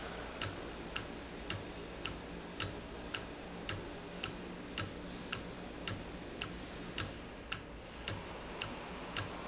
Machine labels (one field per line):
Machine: valve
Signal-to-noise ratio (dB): 0 dB